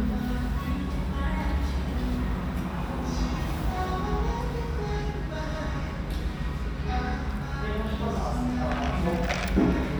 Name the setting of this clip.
restaurant